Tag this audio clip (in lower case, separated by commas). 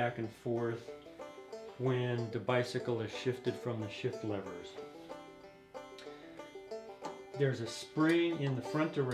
music, speech